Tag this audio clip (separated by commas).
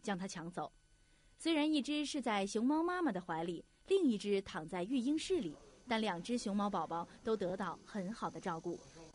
Speech